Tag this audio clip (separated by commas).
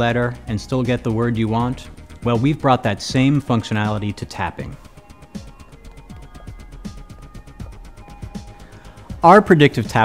Music, Speech